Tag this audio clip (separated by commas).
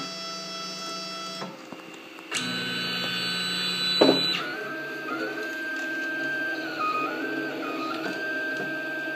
printer printing